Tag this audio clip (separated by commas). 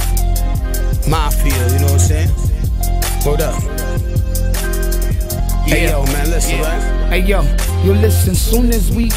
Independent music, Music, Funk